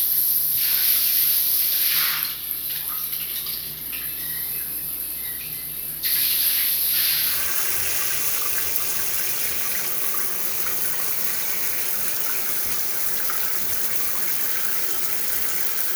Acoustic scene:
restroom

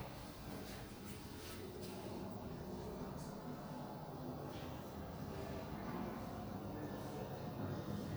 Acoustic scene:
elevator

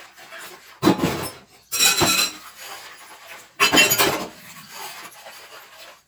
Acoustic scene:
kitchen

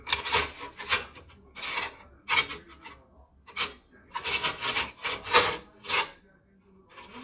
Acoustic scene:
kitchen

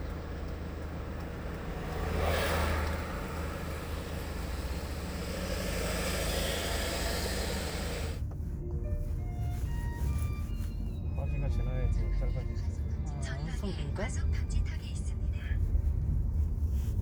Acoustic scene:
car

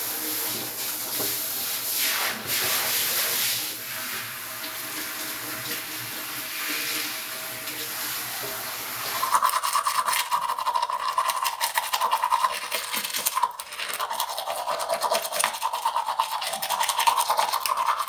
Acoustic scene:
restroom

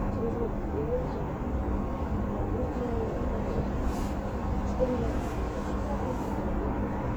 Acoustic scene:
bus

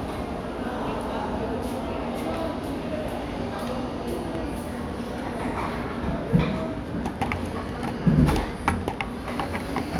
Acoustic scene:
cafe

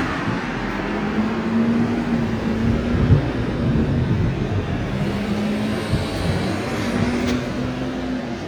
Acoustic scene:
street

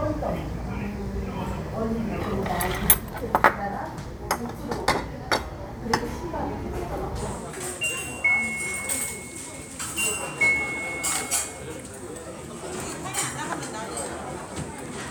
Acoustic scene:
restaurant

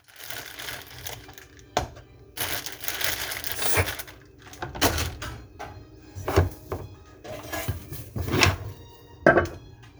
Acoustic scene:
kitchen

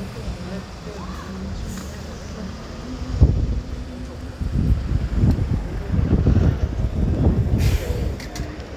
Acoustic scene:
residential area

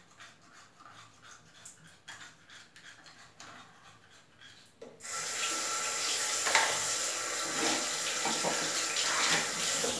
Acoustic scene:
restroom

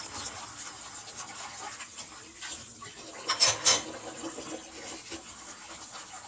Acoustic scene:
kitchen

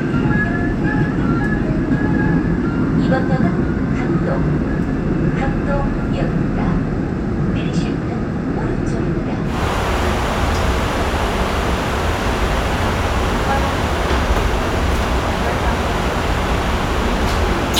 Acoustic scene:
subway train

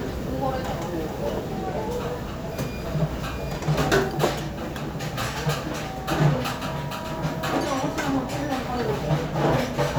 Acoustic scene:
restaurant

